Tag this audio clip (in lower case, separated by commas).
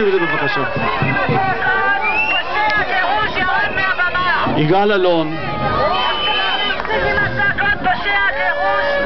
speech